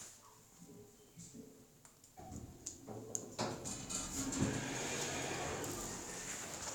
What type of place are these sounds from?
elevator